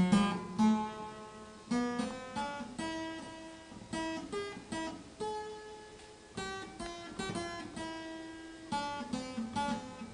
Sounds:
playing harpsichord

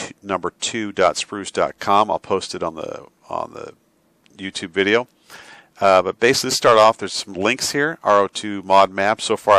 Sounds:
speech

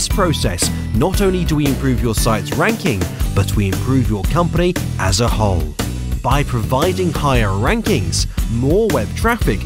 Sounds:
music
speech

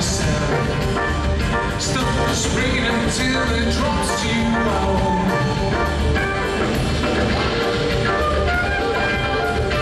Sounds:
music

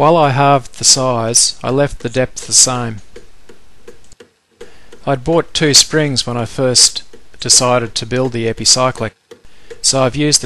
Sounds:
speech

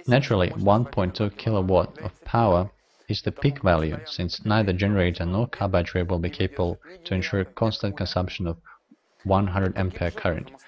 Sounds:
speech

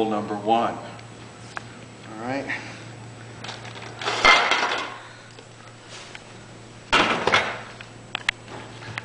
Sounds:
speech

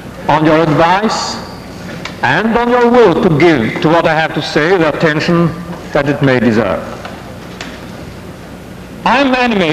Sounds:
narration
speech
male speech

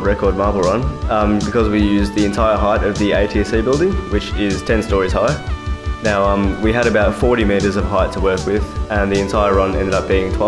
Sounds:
speech
music

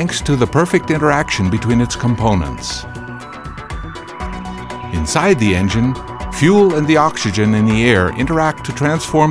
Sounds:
music
speech

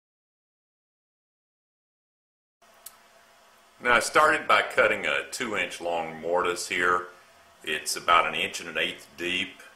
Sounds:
speech

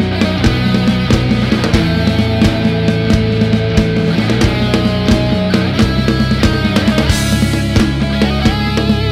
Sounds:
music

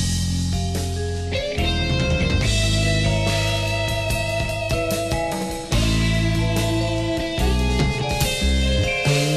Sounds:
slide guitar
music

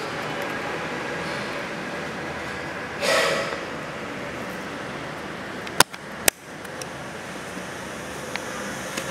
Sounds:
computer keyboard

